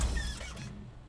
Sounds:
engine

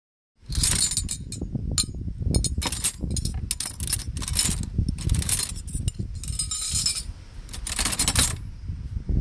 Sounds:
domestic sounds
silverware

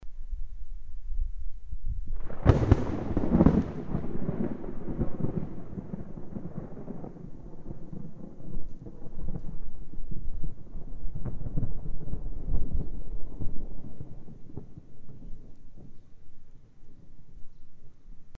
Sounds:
wild animals
animal
bird song
thunder
bird
thunderstorm
wind

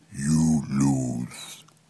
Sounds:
human voice

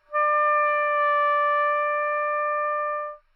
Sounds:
woodwind instrument
music
musical instrument

